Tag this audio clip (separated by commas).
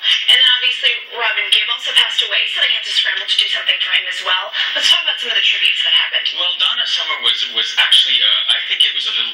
Speech